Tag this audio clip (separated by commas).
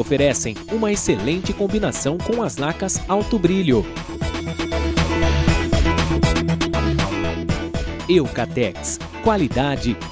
Speech, Music